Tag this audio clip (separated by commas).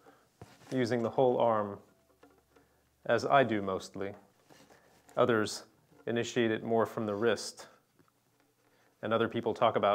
Speech